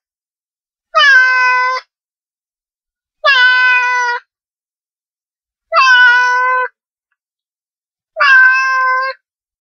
A cat meows several times